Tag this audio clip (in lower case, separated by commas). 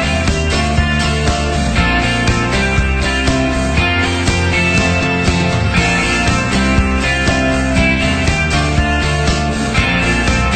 music